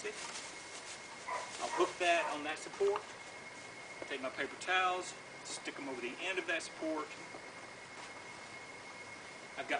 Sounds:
Speech

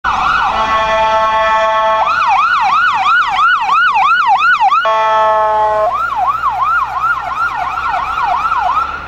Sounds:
Police car (siren), Vehicle, Siren, Emergency vehicle, Car

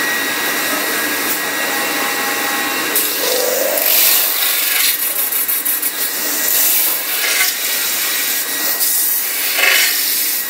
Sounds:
lathe spinning

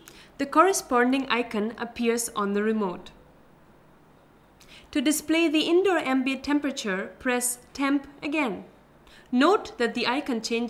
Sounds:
Speech

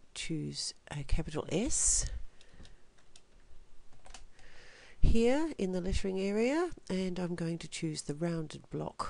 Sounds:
Speech

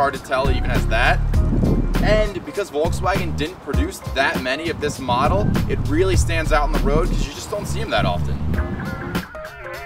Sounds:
Music, Speech

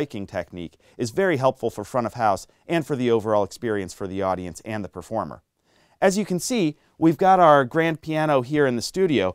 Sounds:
Speech

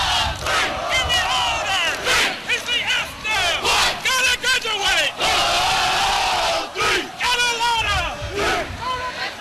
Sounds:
Speech

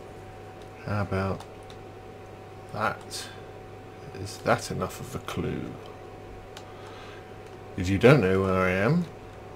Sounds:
Speech

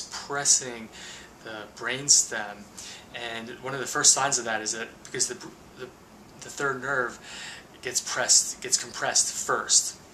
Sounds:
Speech, inside a small room

